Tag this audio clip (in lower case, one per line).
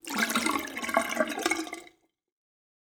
domestic sounds
sink (filling or washing)